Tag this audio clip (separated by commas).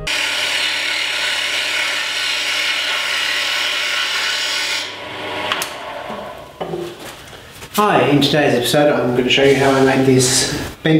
Speech, Tools, inside a small room